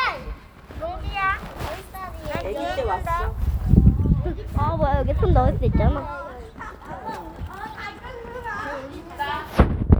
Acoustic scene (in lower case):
park